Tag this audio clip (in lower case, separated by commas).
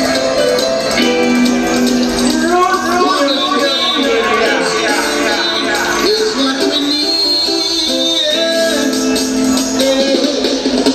speech, music